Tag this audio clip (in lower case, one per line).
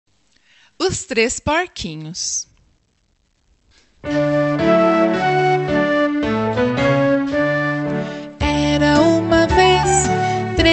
sea lion barking